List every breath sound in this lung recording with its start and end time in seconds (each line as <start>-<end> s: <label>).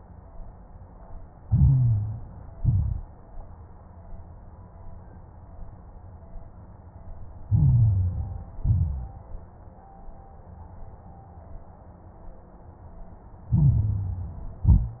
1.42-2.56 s: inhalation
1.42-2.56 s: crackles
2.56-3.24 s: exhalation
2.56-3.24 s: crackles
7.45-8.59 s: inhalation
7.45-8.59 s: crackles
8.61-9.28 s: exhalation
8.61-9.28 s: crackles
13.51-14.65 s: inhalation
13.51-14.65 s: crackles
14.65-15.00 s: exhalation
14.65-15.00 s: crackles